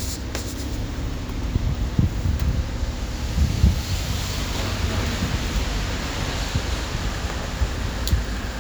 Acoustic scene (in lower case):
street